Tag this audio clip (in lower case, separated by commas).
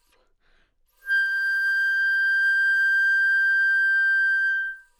music, musical instrument, wind instrument